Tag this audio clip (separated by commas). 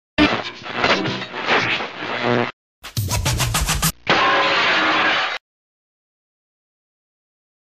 Music